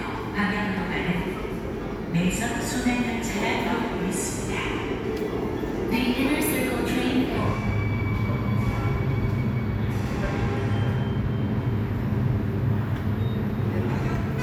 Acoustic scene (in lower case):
subway station